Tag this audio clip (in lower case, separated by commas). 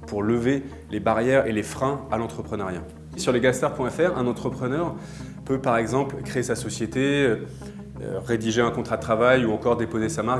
speech, music